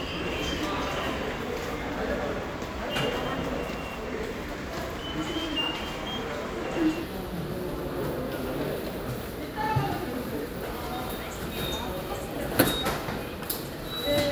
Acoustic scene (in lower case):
subway station